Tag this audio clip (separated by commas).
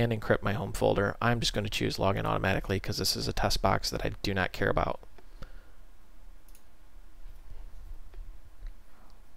Speech